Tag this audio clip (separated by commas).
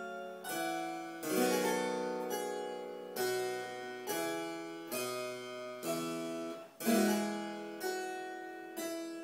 Music, Piano, Keyboard (musical), playing harpsichord, Harpsichord, Musical instrument